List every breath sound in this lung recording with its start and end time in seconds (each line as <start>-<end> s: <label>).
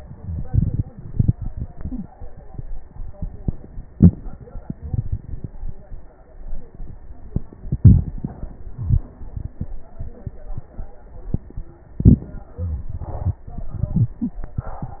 No breath sounds were labelled in this clip.